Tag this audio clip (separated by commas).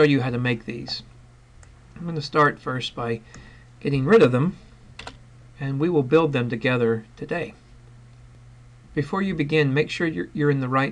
Speech